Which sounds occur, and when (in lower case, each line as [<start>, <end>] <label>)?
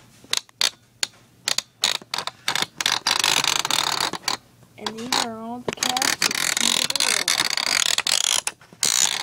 [0.00, 9.22] mechanisms
[0.28, 0.44] generic impact sounds
[0.57, 0.72] generic impact sounds
[0.99, 1.10] generic impact sounds
[1.41, 1.62] generic impact sounds
[1.78, 1.94] generic impact sounds
[2.05, 2.24] generic impact sounds
[2.44, 2.61] generic impact sounds
[2.77, 4.34] generic impact sounds
[4.75, 5.58] woman speaking
[4.77, 5.20] generic impact sounds
[5.66, 8.54] generic impact sounds
[8.77, 9.22] generic impact sounds